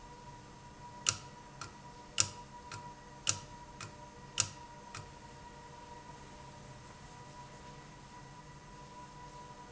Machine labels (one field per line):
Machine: valve